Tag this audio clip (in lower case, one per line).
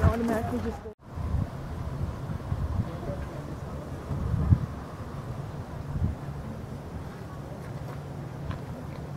speech